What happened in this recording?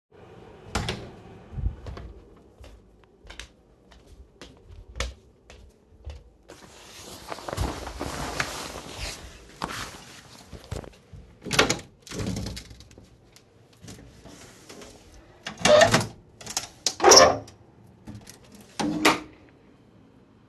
I opened my door, went to the window, opened the curtains, and opened the windows.